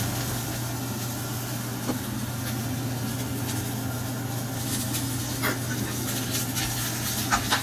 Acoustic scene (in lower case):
kitchen